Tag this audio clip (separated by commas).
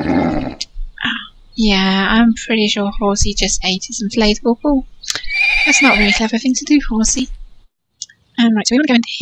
Speech